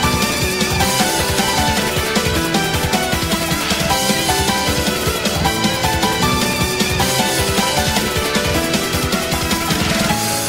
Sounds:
music

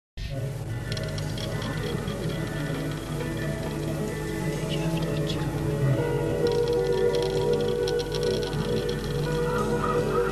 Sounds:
progressive rock, music

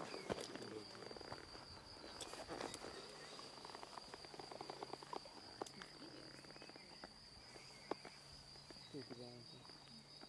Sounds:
animal, snake, outside, rural or natural

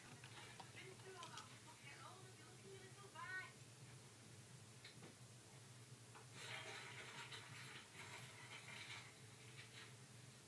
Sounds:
speech

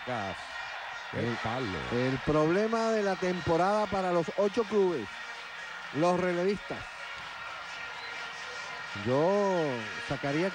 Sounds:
music, speech

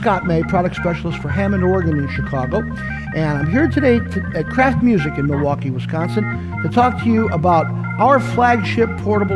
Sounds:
speech, background music, music

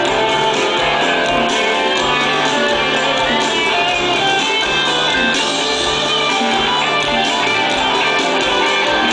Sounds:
music

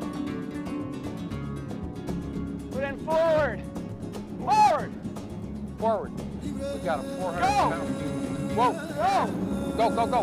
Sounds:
music, speech

